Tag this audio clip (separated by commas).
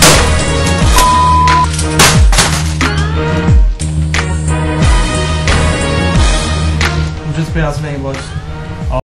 Whack